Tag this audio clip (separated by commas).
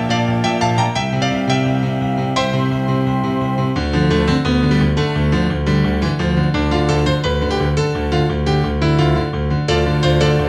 Piano, Electric piano, Classical music, Keyboard (musical), Musical instrument, Music